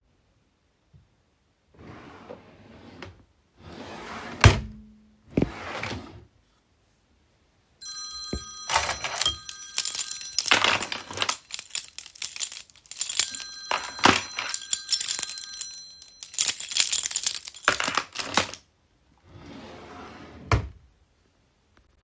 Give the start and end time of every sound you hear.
1.8s-6.1s: wardrobe or drawer
7.8s-19.6s: phone ringing
9.8s-12.7s: keys
12.9s-15.8s: keys
16.2s-18.6s: keys
20.4s-21.0s: wardrobe or drawer

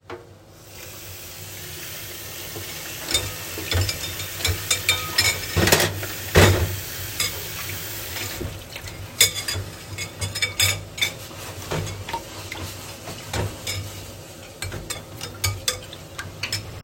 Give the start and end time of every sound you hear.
0.7s-8.4s: running water
3.1s-16.8s: cutlery and dishes

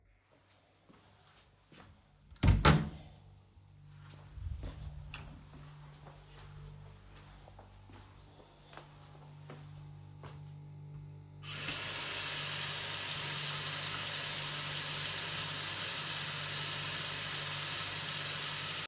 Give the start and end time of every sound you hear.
0.0s-2.4s: footsteps
2.4s-3.0s: door
4.0s-11.4s: footsteps
11.4s-18.9s: running water

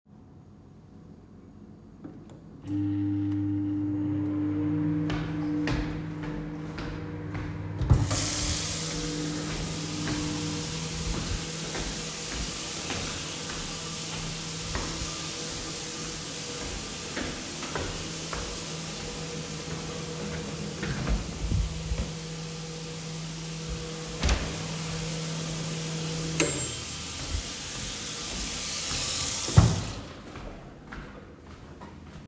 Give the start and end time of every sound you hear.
2.6s-27.0s: microwave
5.0s-8.0s: footsteps
8.0s-30.0s: running water
9.4s-21.4s: footsteps
24.0s-24.6s: wardrobe or drawer
30.2s-32.2s: footsteps

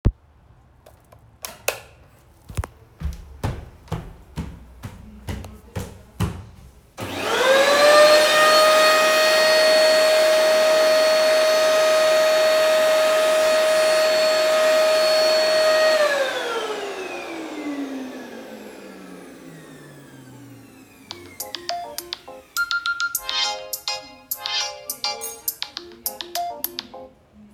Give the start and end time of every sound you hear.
1.4s-1.9s: light switch
2.5s-6.6s: footsteps
6.9s-22.4s: vacuum cleaner
21.1s-27.5s: phone ringing

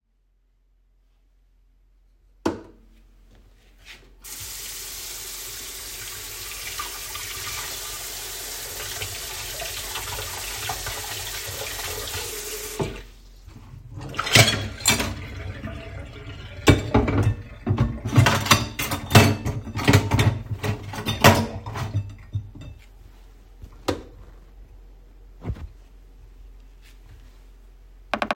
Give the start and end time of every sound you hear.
2.0s-3.5s: light switch
4.2s-13.4s: running water
13.7s-23.0s: cutlery and dishes
23.8s-24.6s: light switch

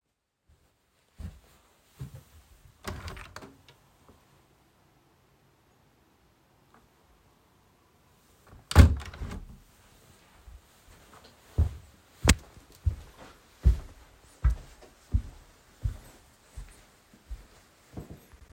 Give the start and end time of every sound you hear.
1.1s-2.3s: footsteps
2.6s-3.7s: window
8.4s-9.6s: window
11.4s-18.5s: footsteps

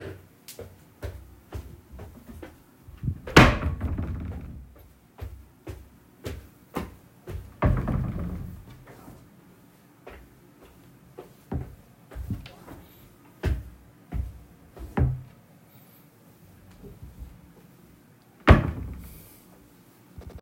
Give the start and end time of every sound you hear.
0.0s-3.2s: footsteps
3.0s-4.7s: wardrobe or drawer
4.3s-7.6s: footsteps
7.5s-9.3s: wardrobe or drawer
8.6s-15.5s: footsteps
11.5s-11.9s: wardrobe or drawer
13.3s-15.4s: wardrobe or drawer
18.3s-19.3s: wardrobe or drawer

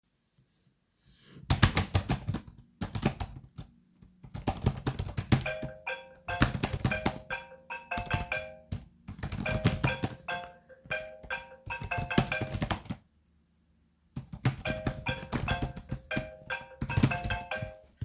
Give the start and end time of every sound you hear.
1.4s-13.0s: keyboard typing
5.2s-13.0s: phone ringing
14.1s-18.0s: keyboard typing
14.5s-18.0s: phone ringing

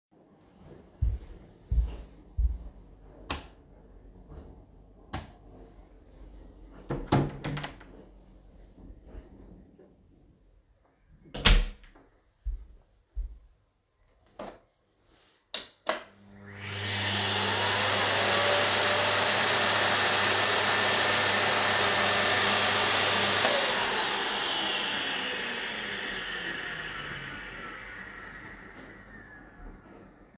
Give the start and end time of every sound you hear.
0.6s-2.9s: footsteps
3.1s-3.8s: light switch
4.9s-5.5s: light switch
6.7s-8.0s: door
11.2s-11.9s: door
12.3s-13.7s: footsteps
16.4s-25.8s: vacuum cleaner

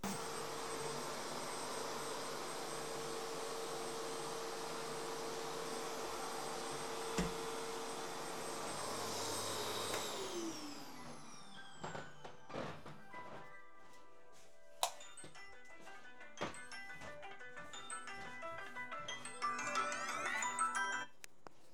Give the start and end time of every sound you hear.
0.0s-12.0s: vacuum cleaner
6.8s-7.7s: light switch
10.1s-21.4s: phone ringing
11.8s-14.7s: footsteps
14.4s-15.3s: light switch
16.2s-20.7s: footsteps

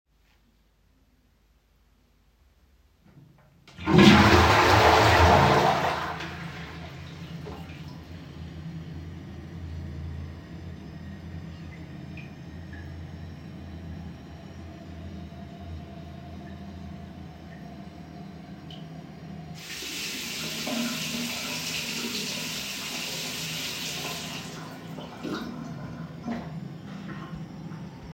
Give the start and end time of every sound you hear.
3.7s-28.1s: toilet flushing
19.5s-25.0s: running water

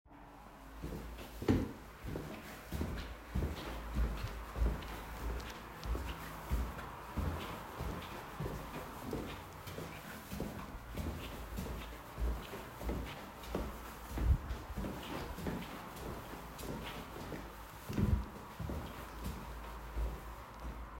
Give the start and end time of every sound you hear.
0.0s-21.0s: footsteps

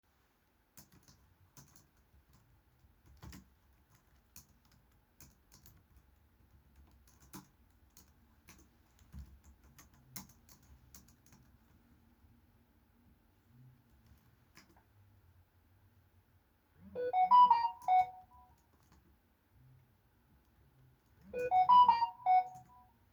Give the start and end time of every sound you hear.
0.5s-15.5s: keyboard typing
16.4s-18.6s: phone ringing
17.8s-19.4s: keyboard typing
21.0s-23.1s: phone ringing
21.3s-23.1s: keyboard typing

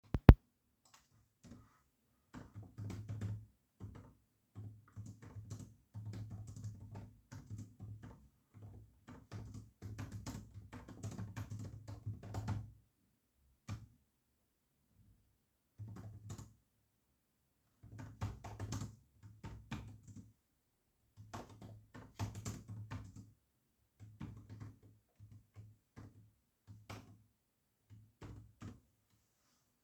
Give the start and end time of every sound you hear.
0.8s-14.1s: keyboard typing
15.8s-28.8s: keyboard typing

